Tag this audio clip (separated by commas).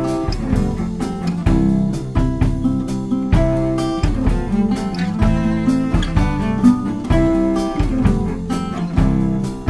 Music, Musical instrument, slide guitar, Drum roll